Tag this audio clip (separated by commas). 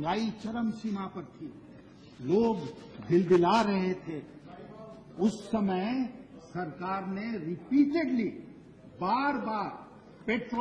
man speaking, monologue, Speech